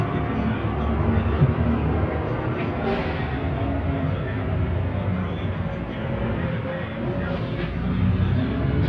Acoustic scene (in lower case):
bus